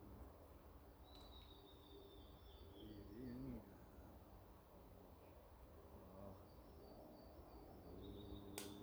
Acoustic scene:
park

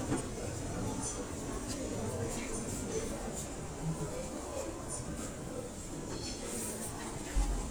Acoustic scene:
crowded indoor space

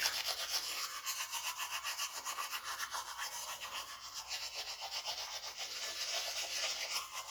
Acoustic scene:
restroom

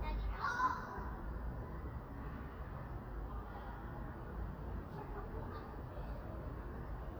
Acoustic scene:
residential area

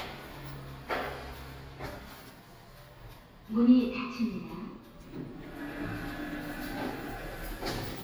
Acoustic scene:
elevator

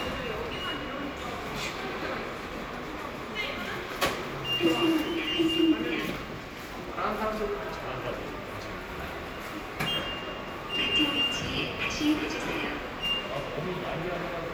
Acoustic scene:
subway station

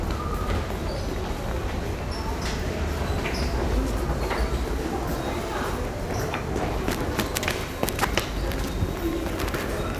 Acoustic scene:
subway station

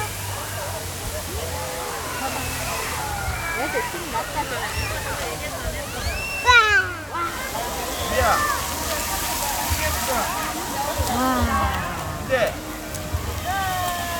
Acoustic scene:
park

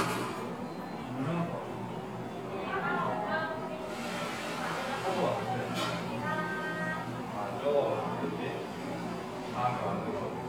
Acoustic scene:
cafe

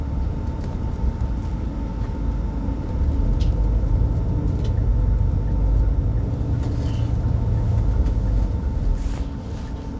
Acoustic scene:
bus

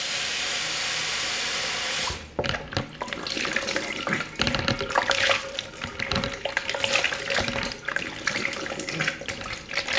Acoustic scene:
restroom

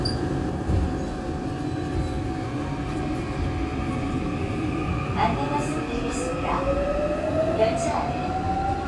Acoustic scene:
subway train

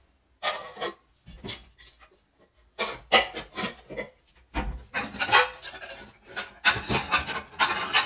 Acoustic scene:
kitchen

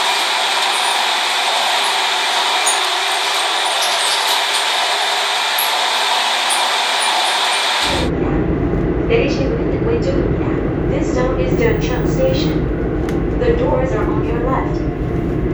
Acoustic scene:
subway train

